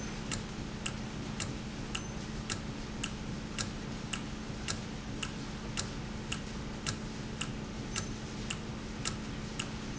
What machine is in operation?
valve